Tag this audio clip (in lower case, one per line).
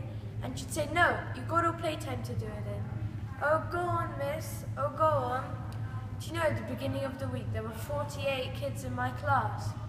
speech